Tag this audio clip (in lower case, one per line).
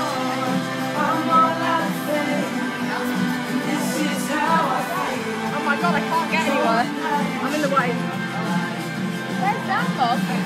speech
music
female singing